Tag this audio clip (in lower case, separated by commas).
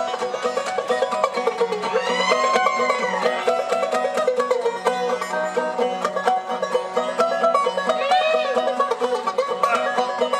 banjo, country, playing banjo, music